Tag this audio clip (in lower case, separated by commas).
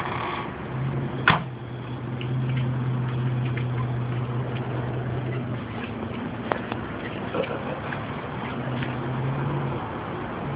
vehicle, car, motor vehicle (road)